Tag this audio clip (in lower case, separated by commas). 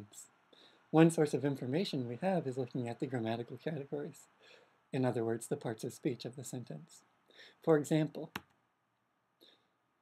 narration, speech, man speaking